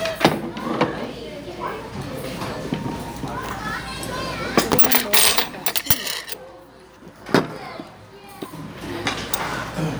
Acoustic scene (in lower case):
restaurant